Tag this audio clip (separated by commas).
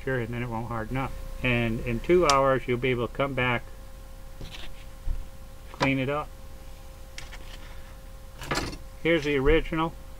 Speech, inside a small room